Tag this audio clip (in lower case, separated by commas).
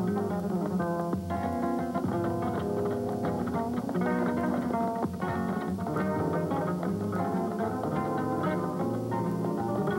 music, acoustic guitar, guitar, musical instrument